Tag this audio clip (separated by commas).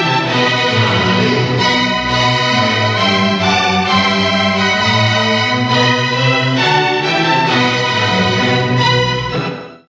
Music, Orchestra